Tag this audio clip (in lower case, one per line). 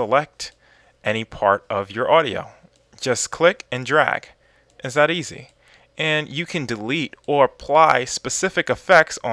speech